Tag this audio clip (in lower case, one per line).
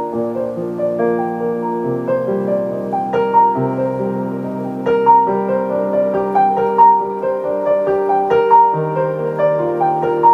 music